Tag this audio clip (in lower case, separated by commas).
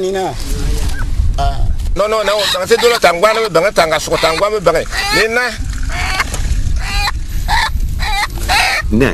quack, speech